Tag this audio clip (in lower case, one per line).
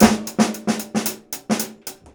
drum
musical instrument
snare drum
percussion
music